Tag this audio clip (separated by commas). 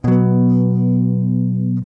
Electric guitar, Plucked string instrument, Guitar, Strum, Music, Musical instrument